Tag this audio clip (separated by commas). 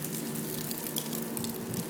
Wind